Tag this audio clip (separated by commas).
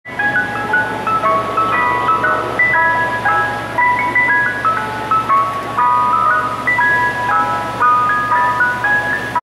Music